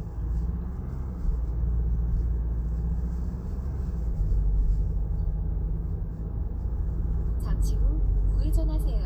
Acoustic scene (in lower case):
car